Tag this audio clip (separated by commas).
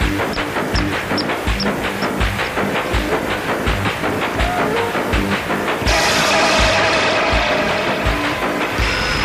Music